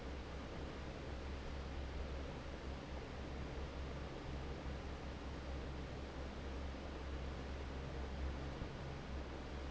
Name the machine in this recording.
fan